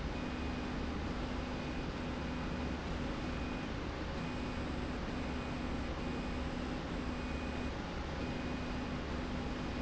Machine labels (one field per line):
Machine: slide rail